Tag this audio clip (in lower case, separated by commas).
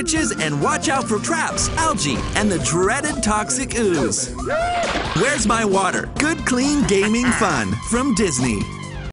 speech, music